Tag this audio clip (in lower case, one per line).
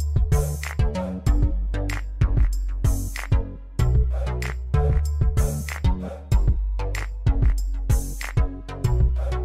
music